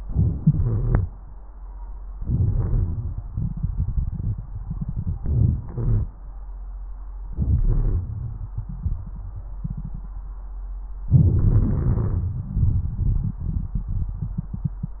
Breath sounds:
0.00-0.40 s: inhalation
0.39-1.07 s: exhalation
0.39-1.07 s: wheeze
2.18-3.19 s: inhalation
2.18-3.19 s: crackles
3.32-5.20 s: exhalation
5.22-5.64 s: inhalation
5.68-6.11 s: exhalation
5.68-6.11 s: wheeze
7.26-7.64 s: inhalation
7.65-10.37 s: exhalation
11.10-12.29 s: inhalation
11.13-12.27 s: wheeze
12.41-15.00 s: exhalation

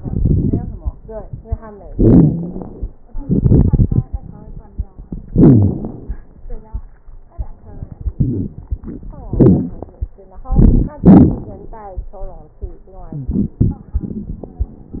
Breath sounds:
0.00-0.92 s: inhalation
0.00-0.92 s: crackles
1.90-2.67 s: exhalation
1.90-2.67 s: wheeze
3.25-4.10 s: inhalation
3.25-4.10 s: crackles
5.30-6.15 s: exhalation
5.30-6.15 s: crackles
8.21-8.57 s: inhalation
8.21-8.57 s: wheeze
9.29-9.78 s: exhalation
9.29-9.78 s: crackles
10.50-10.98 s: inhalation
10.50-10.98 s: crackles
11.02-11.71 s: exhalation
11.02-11.71 s: crackles
13.12-13.59 s: inhalation
13.12-13.59 s: wheeze
13.59-14.78 s: exhalation
13.59-14.78 s: crackles

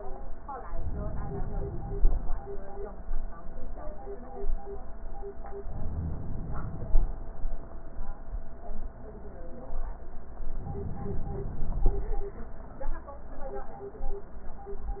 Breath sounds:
0.70-2.14 s: inhalation
5.59-7.03 s: inhalation
10.48-11.92 s: inhalation

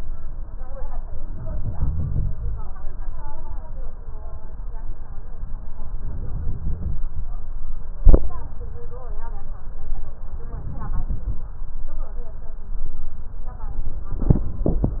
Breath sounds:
1.35-2.66 s: inhalation
5.95-7.01 s: inhalation
10.57-11.42 s: inhalation
10.58-11.43 s: crackles

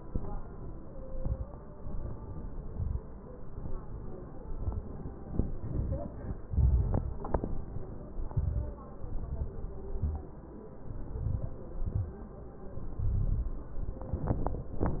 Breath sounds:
0.04-0.83 s: inhalation
1.06-1.54 s: exhalation
1.06-1.54 s: crackles
1.84-2.66 s: inhalation
2.66-3.12 s: exhalation
2.66-3.13 s: crackles
3.53-4.35 s: inhalation
4.50-5.07 s: crackles
4.52-5.07 s: exhalation
5.57-6.37 s: inhalation
6.48-7.24 s: crackles
6.50-7.20 s: exhalation
8.23-8.87 s: crackles
8.25-8.87 s: inhalation
9.02-9.67 s: crackles
9.03-9.71 s: exhalation
10.87-11.57 s: inhalation
10.90-11.55 s: crackles
11.76-12.31 s: exhalation
11.76-12.31 s: crackles
12.88-13.57 s: inhalation
12.88-13.57 s: crackles
14.08-14.76 s: exhalation
14.08-14.76 s: crackles

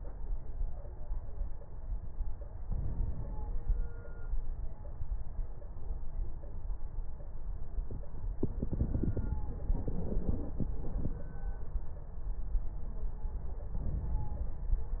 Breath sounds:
2.65-4.14 s: inhalation
9.48-10.72 s: inhalation
9.48-10.72 s: crackles
10.75-11.54 s: exhalation
10.75-11.54 s: crackles
13.76-15.00 s: inhalation

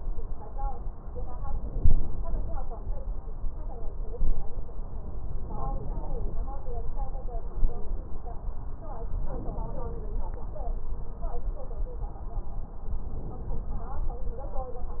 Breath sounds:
1.42-2.60 s: inhalation
5.24-6.42 s: inhalation
9.14-10.32 s: inhalation
12.88-14.29 s: inhalation

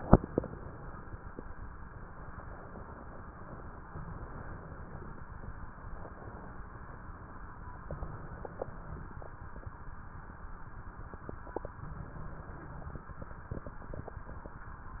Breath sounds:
7.84-9.25 s: inhalation
11.66-13.07 s: inhalation

